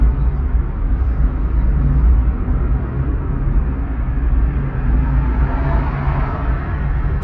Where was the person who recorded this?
in a car